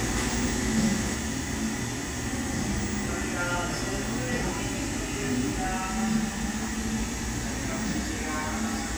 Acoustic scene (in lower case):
cafe